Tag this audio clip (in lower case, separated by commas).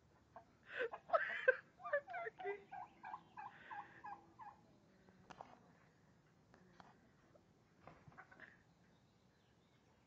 turkey gobbling, gobble, fowl, turkey